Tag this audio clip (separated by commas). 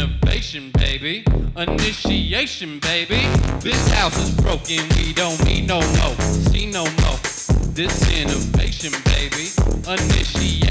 Music, Electronic music, Techno